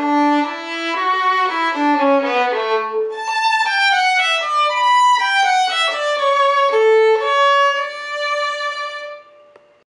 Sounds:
music, musical instrument, violin

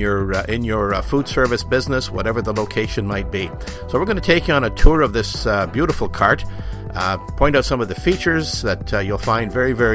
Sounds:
speech, music

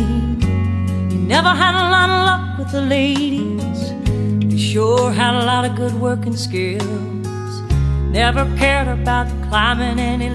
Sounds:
country, song

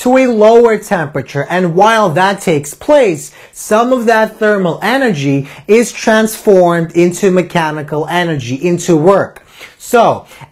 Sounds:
speech

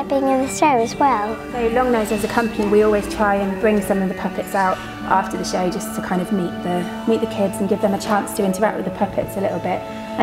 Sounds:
speech, music

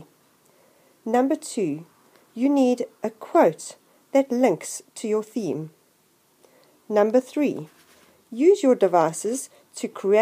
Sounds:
speech

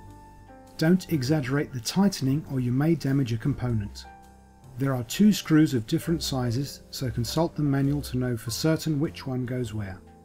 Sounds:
speech, music

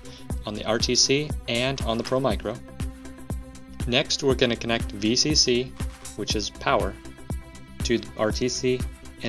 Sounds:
music, speech

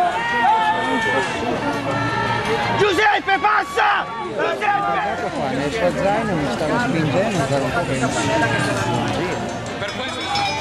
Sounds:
music, speech

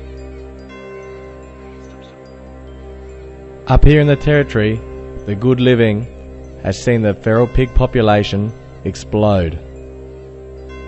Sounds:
music, speech

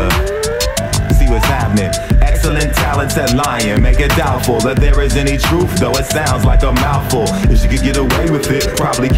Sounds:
music

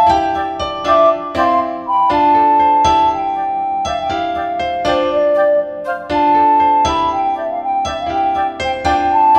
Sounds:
music, electric piano

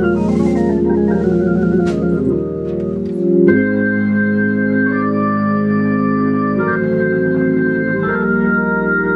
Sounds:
organ, music

